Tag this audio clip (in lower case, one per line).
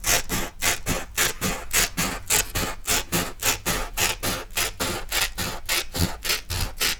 home sounds
scissors